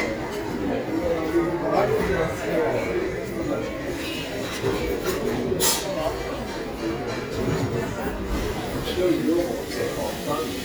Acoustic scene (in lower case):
crowded indoor space